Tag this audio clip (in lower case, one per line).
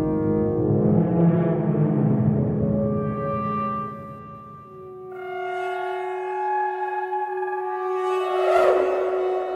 playing french horn